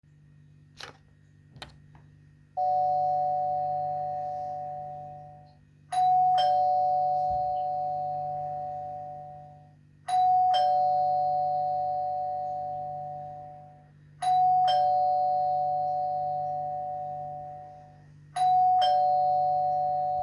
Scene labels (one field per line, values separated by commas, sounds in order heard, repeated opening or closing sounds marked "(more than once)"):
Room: hallway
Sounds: footsteps, bell ringing